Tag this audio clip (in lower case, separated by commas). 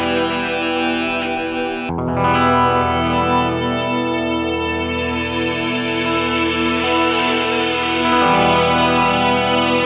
music